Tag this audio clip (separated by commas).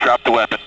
man speaking, Speech, Human voice